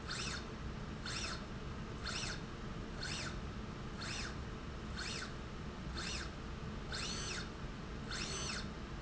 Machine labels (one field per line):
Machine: slide rail